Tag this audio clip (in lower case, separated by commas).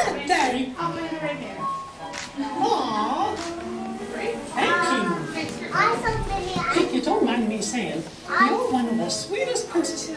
music, speech